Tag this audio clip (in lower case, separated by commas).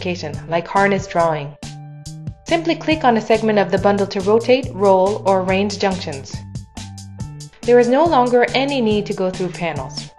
speech, music